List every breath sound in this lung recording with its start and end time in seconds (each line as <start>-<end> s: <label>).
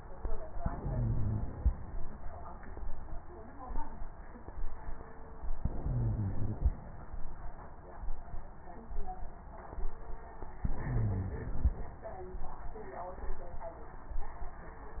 0.55-1.67 s: crackles
0.57-1.69 s: inhalation
5.60-6.72 s: inhalation
5.60-6.72 s: crackles
10.66-11.78 s: inhalation
10.66-11.78 s: crackles